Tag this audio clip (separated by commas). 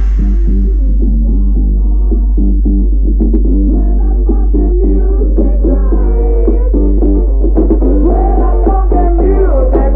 Dance music, Music